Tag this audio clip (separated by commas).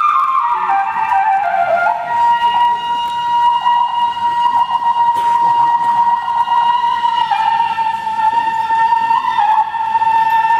Music, inside a large room or hall, Classical music, Orchestra